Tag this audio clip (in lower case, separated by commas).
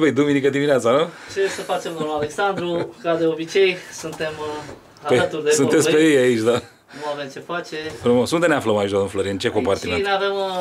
inside a small room, speech